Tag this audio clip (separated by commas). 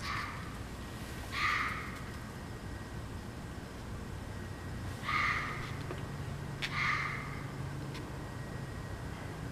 fox barking